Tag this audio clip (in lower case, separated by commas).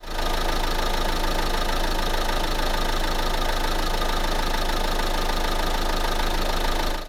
engine, vehicle, motor vehicle (road), car